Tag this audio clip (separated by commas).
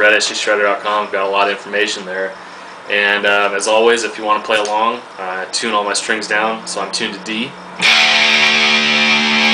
Musical instrument, Music, Plucked string instrument, Speech, Guitar, Acoustic guitar, Bass guitar